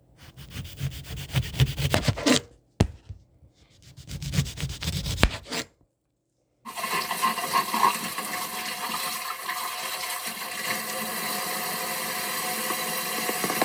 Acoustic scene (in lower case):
kitchen